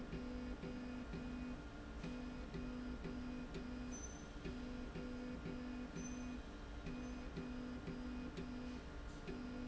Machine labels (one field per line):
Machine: slide rail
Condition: normal